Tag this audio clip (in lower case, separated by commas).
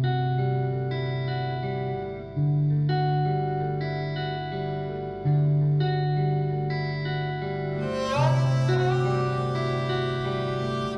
music, plucked string instrument, guitar, musical instrument, inside a small room